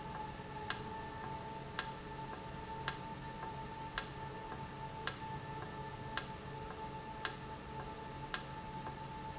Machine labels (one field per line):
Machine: valve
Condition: normal